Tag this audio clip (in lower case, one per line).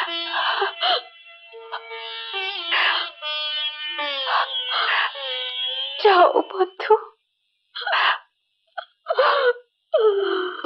inside a large room or hall
music
speech